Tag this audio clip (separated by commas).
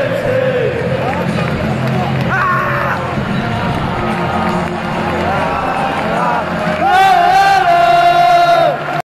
Music, Speech